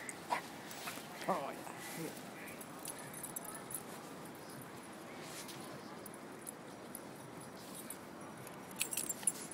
Man is speaking and dog barks